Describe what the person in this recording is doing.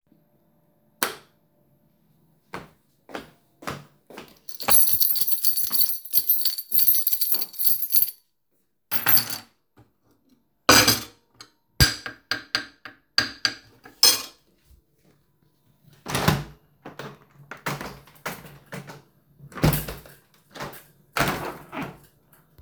I turned on the light while walking across the room so the light switch and footsteps overlapped briefly. After reaching the desk I placed a plate on the table and then put a spoon on the plate. Finally I opened the window.